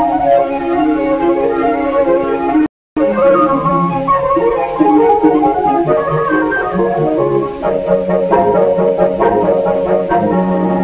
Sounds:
music

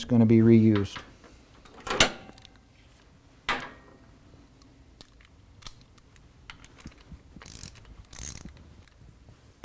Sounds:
speech

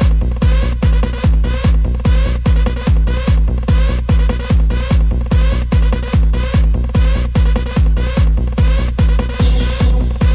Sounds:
music

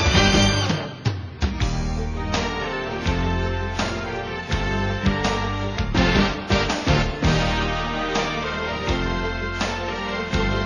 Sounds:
music

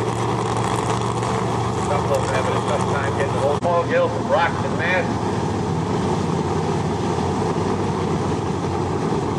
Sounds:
car
vehicle
speech

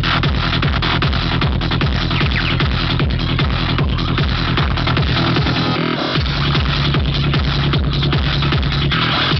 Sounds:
music
vibration

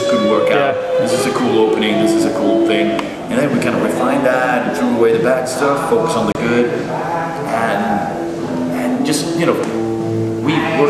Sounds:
inside a large room or hall
music
speech

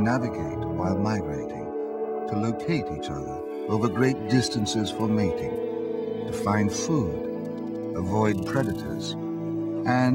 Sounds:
music
speech

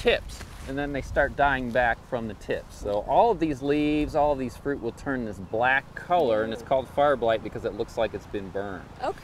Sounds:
speech

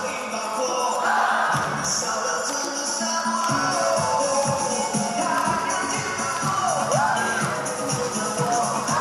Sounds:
rope skipping

